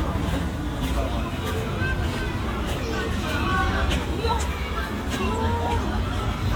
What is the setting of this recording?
park